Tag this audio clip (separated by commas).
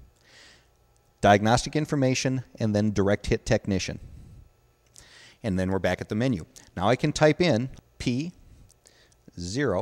Speech